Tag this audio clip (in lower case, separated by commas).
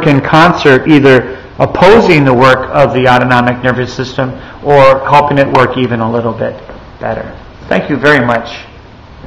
speech